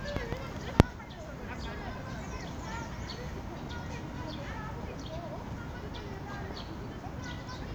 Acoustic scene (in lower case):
park